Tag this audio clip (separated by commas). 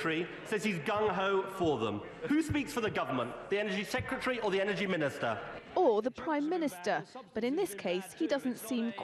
Speech